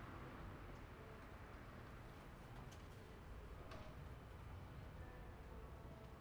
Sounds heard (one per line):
unclassified sound